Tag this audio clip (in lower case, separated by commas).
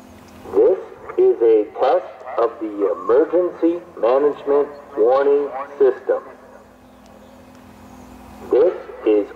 speech